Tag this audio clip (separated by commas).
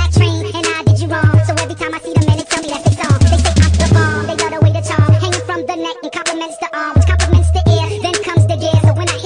Music